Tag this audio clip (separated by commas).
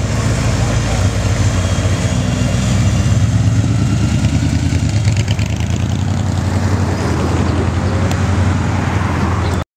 Speech